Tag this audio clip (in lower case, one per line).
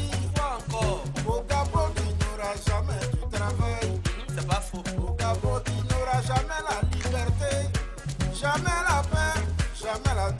music